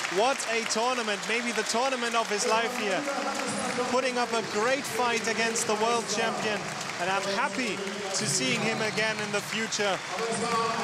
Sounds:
man speaking

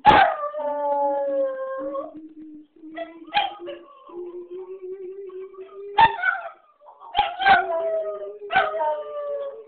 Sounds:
dog
howl
domestic animals
animal

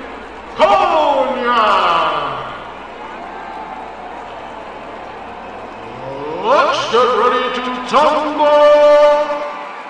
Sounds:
speech

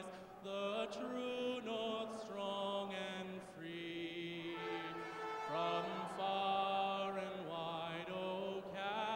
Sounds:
music
male singing

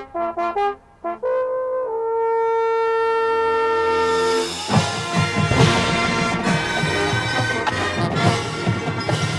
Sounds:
trombone
trumpet
music
brass instrument
french horn

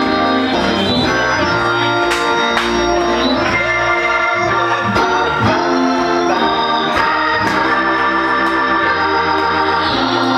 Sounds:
playing hammond organ

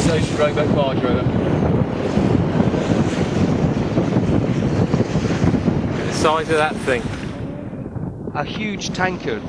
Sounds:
boat
vehicle
speech

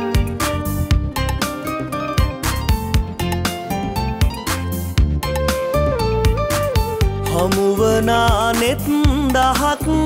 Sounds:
tender music
music

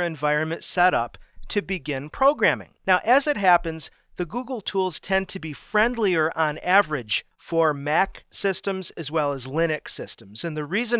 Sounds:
speech

